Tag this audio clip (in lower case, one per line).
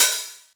percussion
hi-hat
music
musical instrument
cymbal